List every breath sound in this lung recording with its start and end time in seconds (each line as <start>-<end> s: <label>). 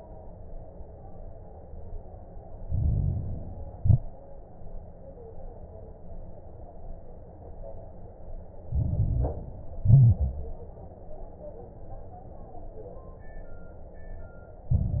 2.58-3.72 s: inhalation
2.58-3.72 s: crackles
3.74-4.03 s: exhalation
3.74-4.03 s: crackles
8.68-9.82 s: inhalation
8.68-9.82 s: crackles
9.84-10.59 s: exhalation
9.84-10.59 s: crackles
14.73-15.00 s: inhalation
14.73-15.00 s: crackles